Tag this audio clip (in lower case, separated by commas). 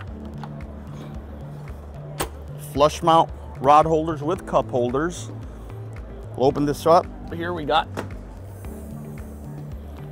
music, speech